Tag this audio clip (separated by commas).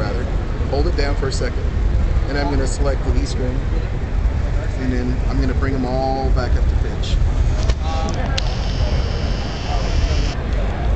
Speech